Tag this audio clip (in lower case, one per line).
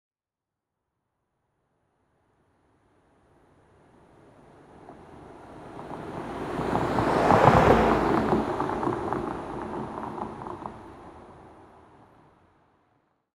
car passing by
motor vehicle (road)
engine
car
vehicle